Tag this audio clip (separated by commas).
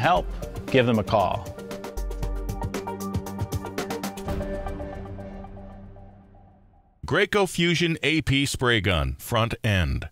Speech, Music